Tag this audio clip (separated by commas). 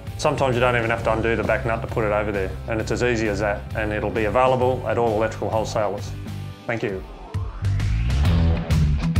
Music, Speech